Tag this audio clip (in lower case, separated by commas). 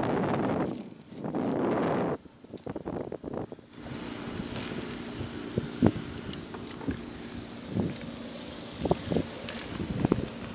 bicycle, vehicle, outside, urban or man-made